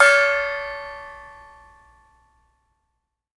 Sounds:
gong
music
percussion
musical instrument

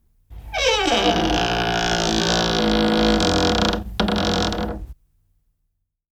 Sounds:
squeak
domestic sounds
door

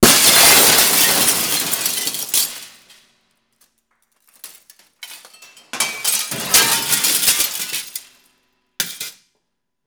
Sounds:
glass
shatter

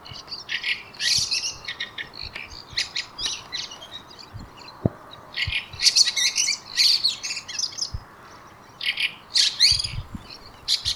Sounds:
wild animals
animal
bird call
bird

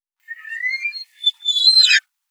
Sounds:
door
squeak
domestic sounds

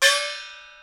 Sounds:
musical instrument
music
percussion
gong

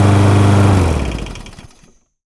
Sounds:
engine

